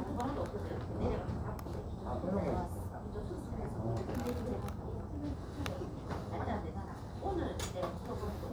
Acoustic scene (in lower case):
crowded indoor space